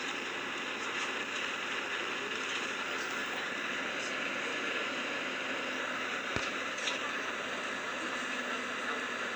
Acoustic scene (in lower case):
bus